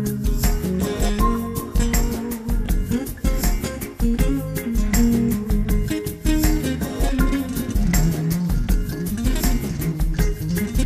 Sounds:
music

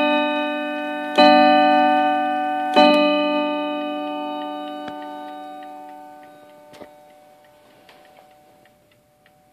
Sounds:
tick-tock

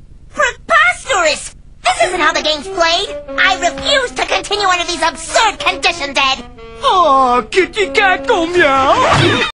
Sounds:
speech
music

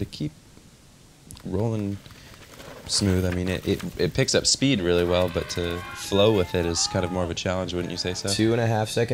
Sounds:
speech

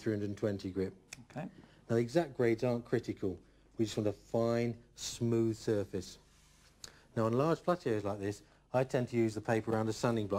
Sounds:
speech

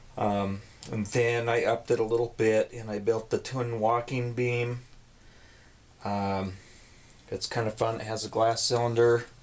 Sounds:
speech

